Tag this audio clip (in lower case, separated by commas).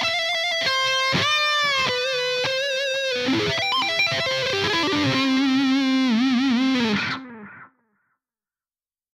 guitar, music, musical instrument, plucked string instrument